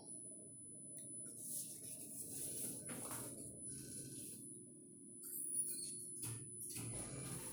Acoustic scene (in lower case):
elevator